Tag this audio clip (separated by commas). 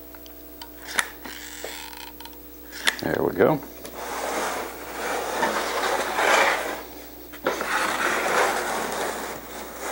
Speech